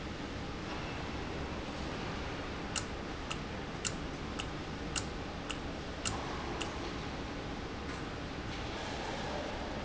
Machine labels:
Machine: valve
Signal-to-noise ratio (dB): -6 dB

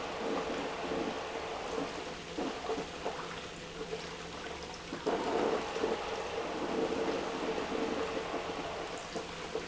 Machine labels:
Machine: pump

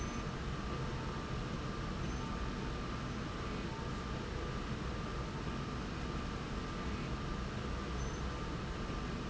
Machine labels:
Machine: slide rail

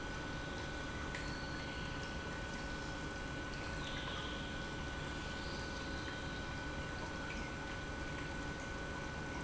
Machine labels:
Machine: pump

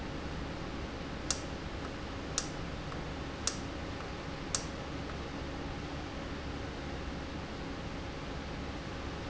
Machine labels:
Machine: valve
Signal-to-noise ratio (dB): -6 dB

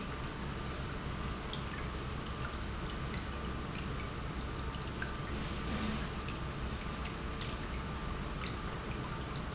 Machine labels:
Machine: pump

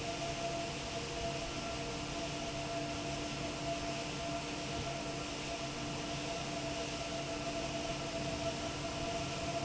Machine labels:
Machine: fan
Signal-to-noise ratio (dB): -6 dB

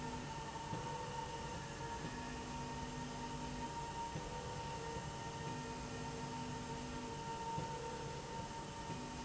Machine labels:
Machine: slide rail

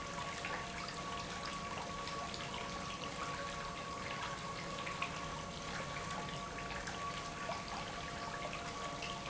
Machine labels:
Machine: pump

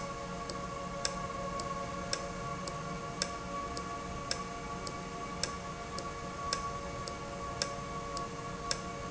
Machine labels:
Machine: valve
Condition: normal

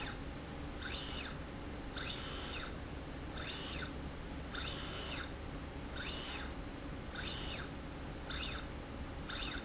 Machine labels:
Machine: slide rail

